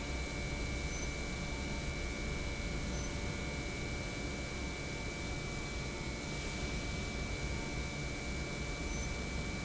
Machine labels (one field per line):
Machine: pump